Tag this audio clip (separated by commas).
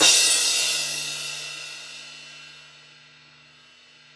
Music, Percussion, Musical instrument, Crash cymbal, Cymbal